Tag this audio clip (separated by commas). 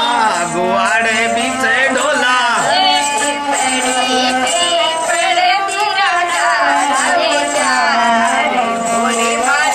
Music